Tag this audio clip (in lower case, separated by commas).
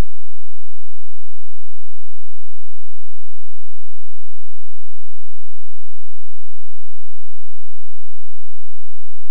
silence